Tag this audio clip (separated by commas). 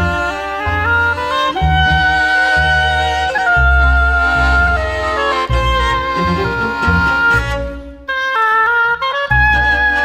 playing oboe